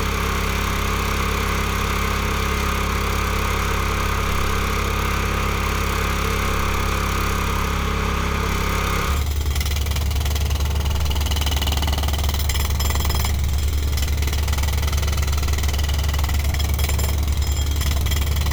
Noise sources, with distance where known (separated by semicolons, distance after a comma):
jackhammer